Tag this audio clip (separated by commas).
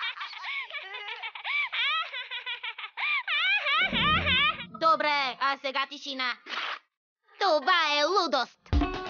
Speech, Music